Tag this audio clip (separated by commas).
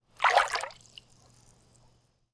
Liquid, Splash